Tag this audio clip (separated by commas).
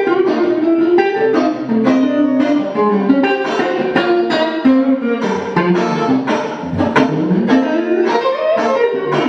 Music, Independent music